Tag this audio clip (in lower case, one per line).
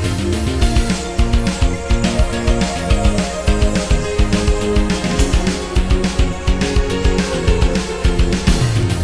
music